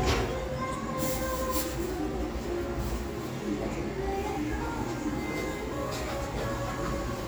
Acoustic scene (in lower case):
restaurant